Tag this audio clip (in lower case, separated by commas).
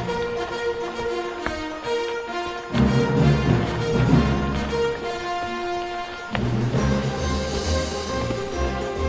animal, music, clip-clop